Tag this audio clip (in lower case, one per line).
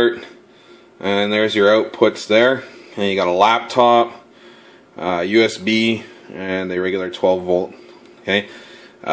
speech